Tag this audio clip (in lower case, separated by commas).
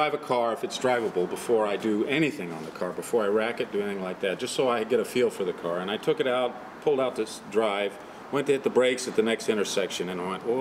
speech